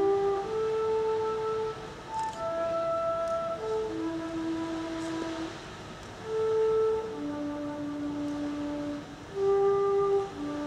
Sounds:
Rustling leaves, Music

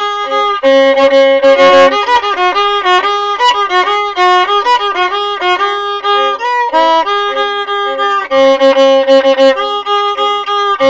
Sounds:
Violin, Music, Musical instrument

